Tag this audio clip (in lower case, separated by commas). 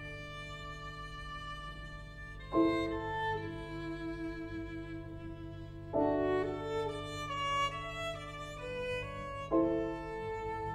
playing piano, piano, musical instrument, music, keyboard (musical)